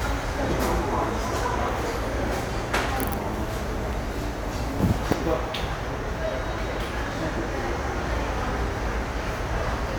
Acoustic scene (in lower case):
subway station